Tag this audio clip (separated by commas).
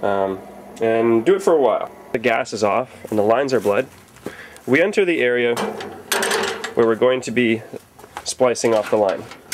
Speech